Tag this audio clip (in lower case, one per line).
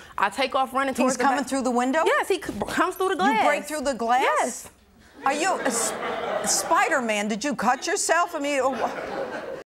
speech